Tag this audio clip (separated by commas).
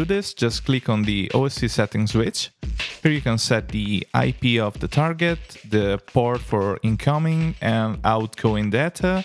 Music, Speech